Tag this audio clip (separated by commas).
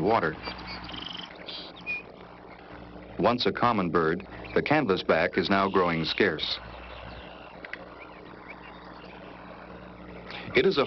Speech